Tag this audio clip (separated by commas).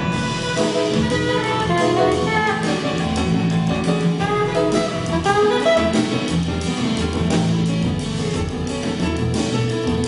Musical instrument, Drum kit, Double bass, Music, Jazz